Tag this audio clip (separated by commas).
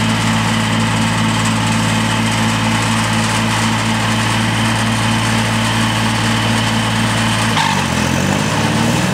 lawn mowing, Vehicle, Lawn mower